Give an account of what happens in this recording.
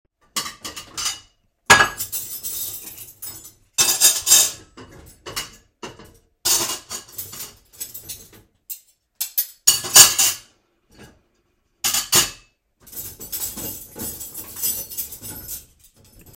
I was taking out cutlery and dishes from the dishwasher